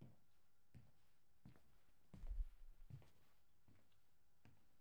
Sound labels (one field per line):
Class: footsteps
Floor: tiled floor